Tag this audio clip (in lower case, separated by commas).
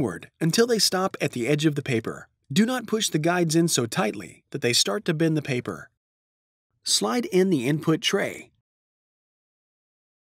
speech